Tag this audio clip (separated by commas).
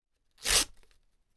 Tearing